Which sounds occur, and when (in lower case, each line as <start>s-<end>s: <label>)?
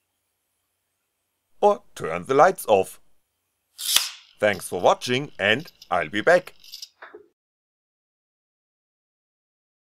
0.0s-7.3s: mechanisms
1.6s-1.8s: male speech
1.9s-3.0s: male speech
3.7s-4.3s: generic impact sounds
3.9s-4.0s: tick
4.3s-5.7s: male speech
5.6s-5.7s: tick
5.8s-5.9s: tick
5.8s-6.4s: male speech
6.4s-6.5s: tick
6.5s-7.3s: generic impact sounds
6.8s-6.9s: tick